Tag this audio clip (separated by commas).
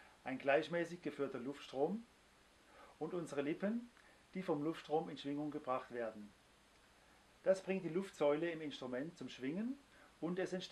Speech